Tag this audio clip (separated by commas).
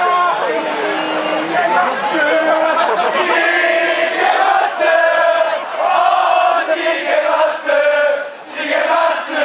Crowd, Chant, Vocal music